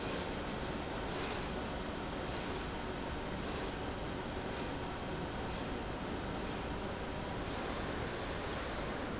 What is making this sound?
slide rail